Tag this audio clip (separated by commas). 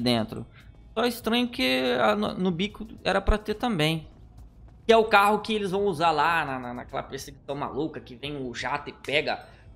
striking pool